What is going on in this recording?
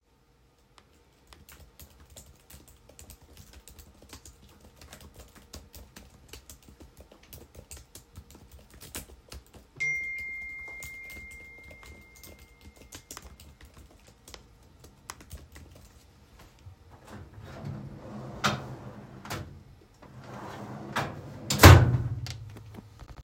I was typing on my laptop keyboard when the notification came on my phone, but I continued typing. Then I opened and closed my drawer.